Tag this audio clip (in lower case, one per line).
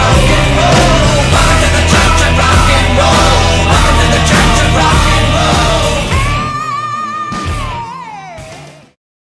rock and roll
music